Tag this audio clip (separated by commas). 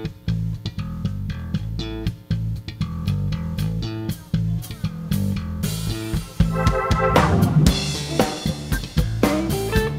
Bass drum, Snare drum, Percussion, Drum, Rimshot, Drum kit